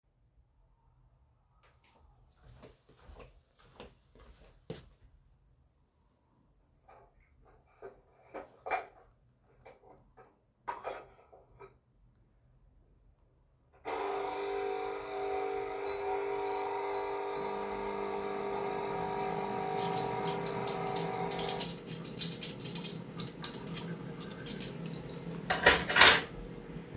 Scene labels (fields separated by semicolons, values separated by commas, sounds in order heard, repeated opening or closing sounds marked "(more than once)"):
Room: kitchen; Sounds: footsteps, cutlery and dishes, coffee machine, microwave